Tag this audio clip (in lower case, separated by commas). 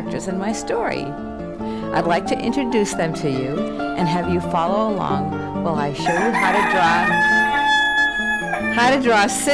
music, speech, chicken